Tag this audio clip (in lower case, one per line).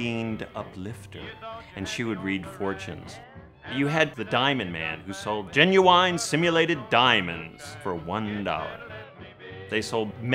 music
speech
radio